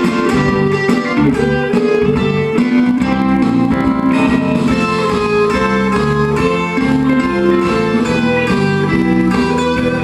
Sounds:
musical instrument
guitar
music

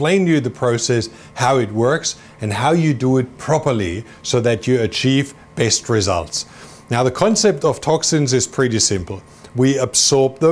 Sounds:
speech

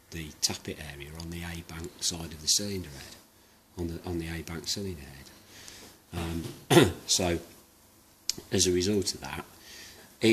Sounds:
speech

